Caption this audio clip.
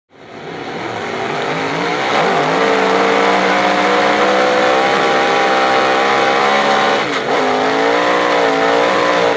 A fast vehicle accelerates